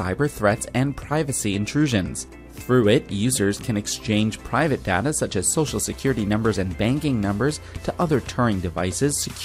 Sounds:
music
speech

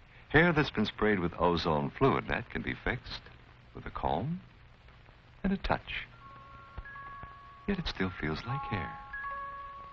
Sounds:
speech

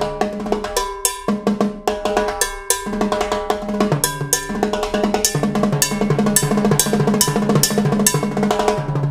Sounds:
inside a large room or hall
drum
snare drum
percussion
drum roll
musical instrument
music

